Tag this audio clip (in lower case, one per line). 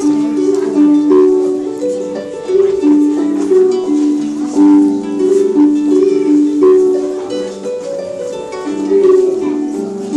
playing harp